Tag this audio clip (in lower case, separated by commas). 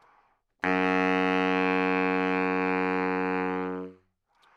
music, musical instrument, wind instrument